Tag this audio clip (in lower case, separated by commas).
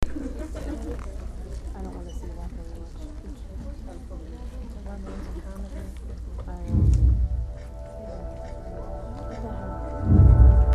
human group actions, crowd